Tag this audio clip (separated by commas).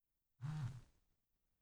Alarm, Telephone